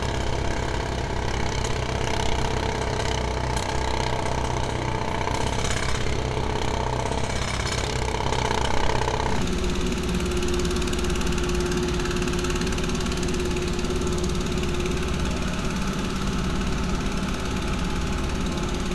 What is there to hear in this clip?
jackhammer